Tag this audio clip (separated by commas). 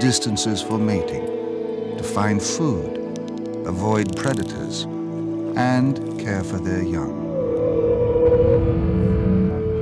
Speech, Music